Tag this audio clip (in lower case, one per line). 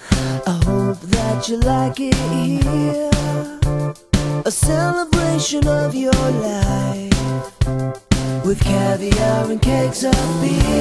music